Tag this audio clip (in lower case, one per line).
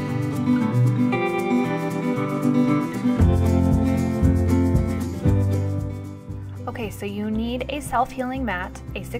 speech
music